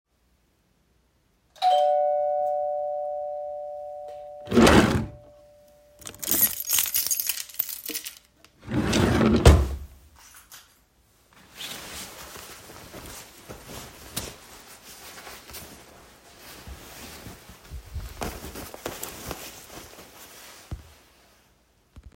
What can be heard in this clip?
bell ringing, wardrobe or drawer, keys